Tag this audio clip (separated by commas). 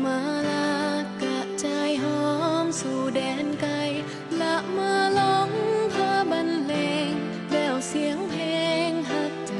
Music